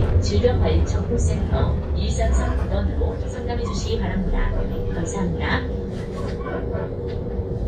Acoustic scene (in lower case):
bus